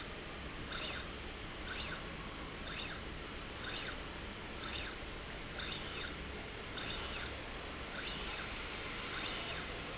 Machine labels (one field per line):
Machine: slide rail